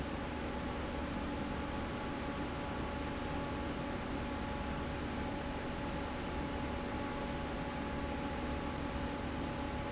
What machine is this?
fan